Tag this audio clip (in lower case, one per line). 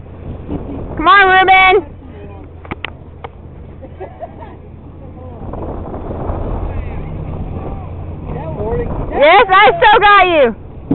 speech